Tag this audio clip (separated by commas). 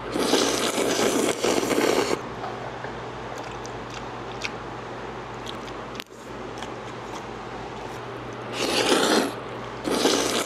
people eating noodle